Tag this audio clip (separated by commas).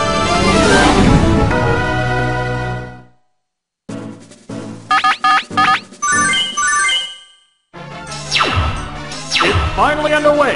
Music, Speech